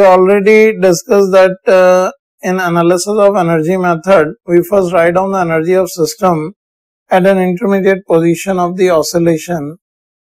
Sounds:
Speech

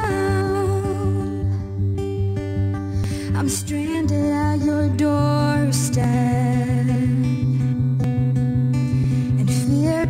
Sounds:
Music

